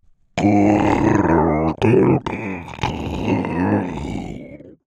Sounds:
human voice

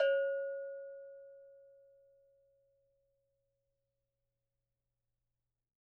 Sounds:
bell

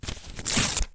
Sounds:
tearing

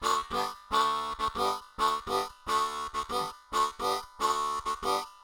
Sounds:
harmonica
music
musical instrument

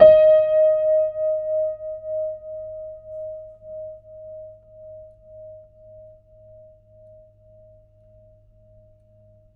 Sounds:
piano
musical instrument
music
keyboard (musical)

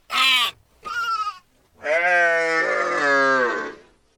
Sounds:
livestock
animal

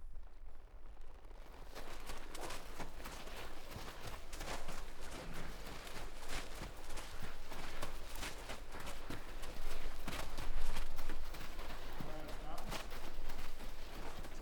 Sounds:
livestock
animal

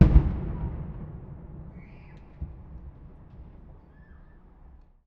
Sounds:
explosion
gunfire
fireworks
boom

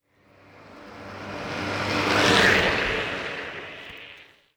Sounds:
vehicle
car
motor vehicle (road)
engine
traffic noise
car passing by

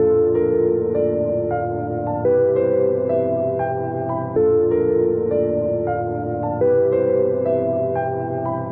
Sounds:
keyboard (musical)
music
musical instrument
piano

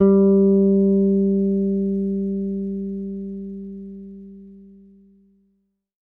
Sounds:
music
bass guitar
musical instrument
guitar
plucked string instrument

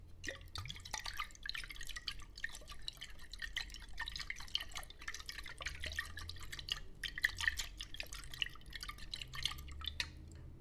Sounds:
liquid
splatter

